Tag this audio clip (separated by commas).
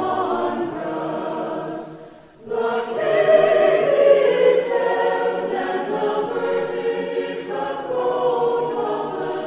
Mantra